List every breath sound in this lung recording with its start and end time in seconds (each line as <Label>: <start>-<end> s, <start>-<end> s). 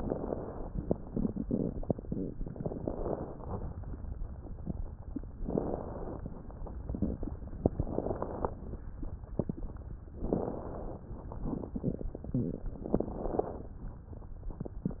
Inhalation: 2.58-3.57 s, 5.45-6.43 s, 7.63-8.62 s, 10.19-11.18 s, 12.81-13.70 s
Crackles: 2.58-3.57 s, 5.45-6.43 s, 7.63-8.62 s, 10.19-11.18 s, 12.81-13.70 s